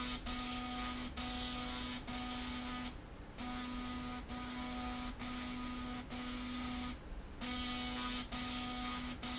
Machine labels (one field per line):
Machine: slide rail